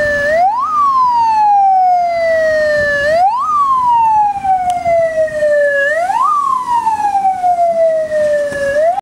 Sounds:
siren
emergency vehicle
ambulance (siren)
ambulance siren

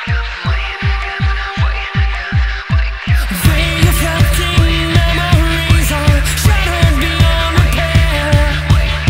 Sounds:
sampler
singing
music

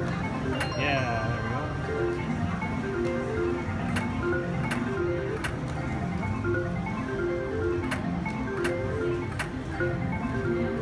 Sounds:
slot machine

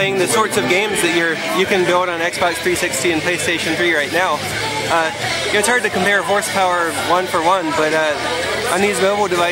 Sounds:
music
speech

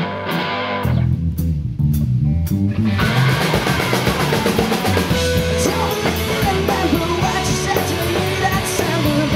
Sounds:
music

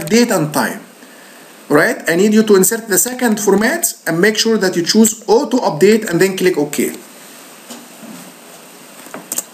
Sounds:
speech
typing
computer keyboard

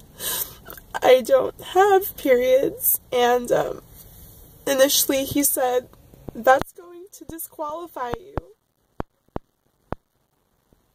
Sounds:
speech

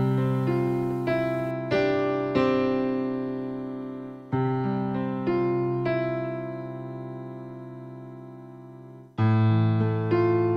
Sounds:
music

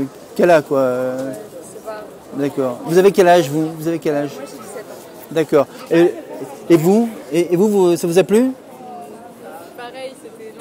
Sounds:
speech

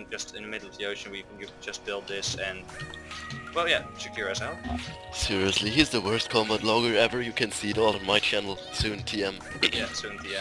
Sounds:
music
speech

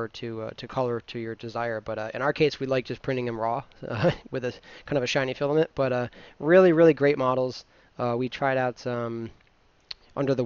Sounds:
speech

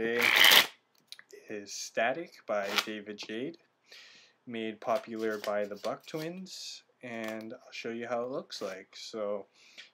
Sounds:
speech

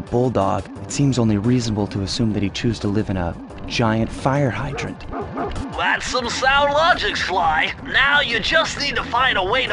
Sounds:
speech
bow-wow

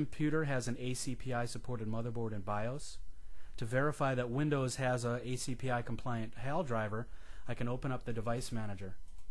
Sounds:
speech

